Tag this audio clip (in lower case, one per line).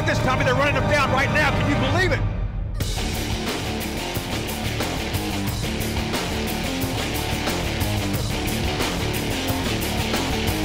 speech
music